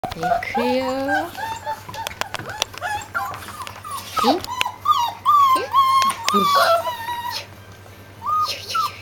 Female voice and then a dog is crying